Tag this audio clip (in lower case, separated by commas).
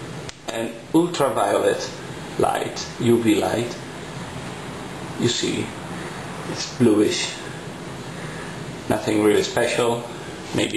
speech